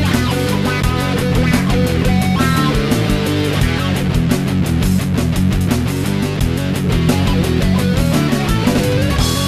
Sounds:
rhythm and blues
music

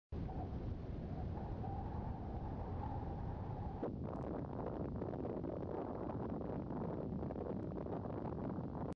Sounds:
explosion

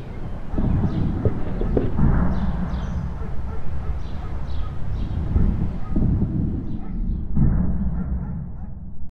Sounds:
animal
pets
dog

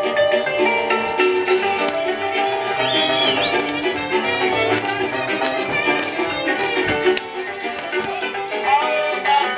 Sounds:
music

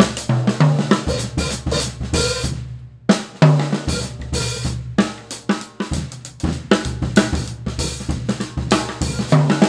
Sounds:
music
hi-hat

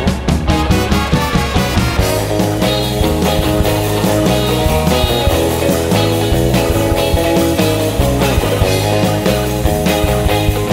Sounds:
music
psychedelic rock

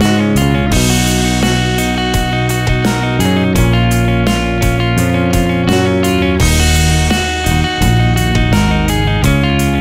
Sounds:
music

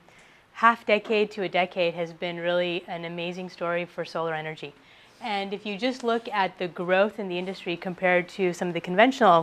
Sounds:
speech

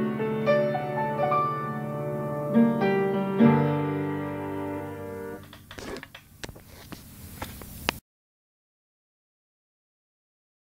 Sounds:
music
piano
keyboard (musical)
musical instrument

